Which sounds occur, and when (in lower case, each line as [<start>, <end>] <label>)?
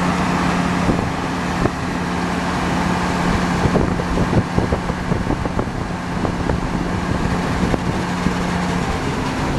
[0.00, 9.55] truck
[0.83, 1.01] wind noise (microphone)
[1.55, 1.71] wind noise (microphone)
[3.56, 5.65] wind noise (microphone)
[5.92, 8.55] wind noise (microphone)